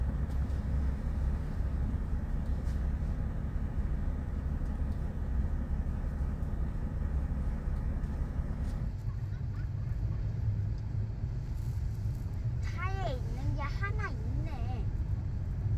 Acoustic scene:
car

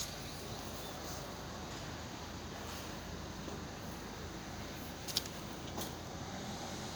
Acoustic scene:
residential area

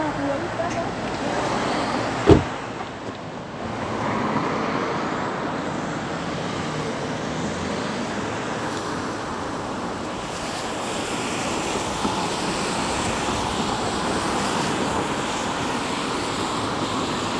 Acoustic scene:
street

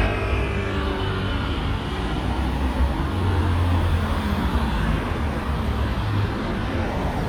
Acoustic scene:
street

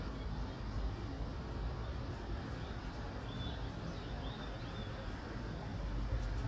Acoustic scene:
residential area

